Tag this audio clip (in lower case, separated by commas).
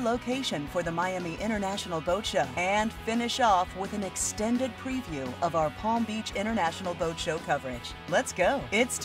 music, speech